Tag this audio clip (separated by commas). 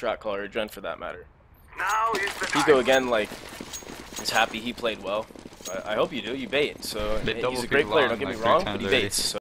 Speech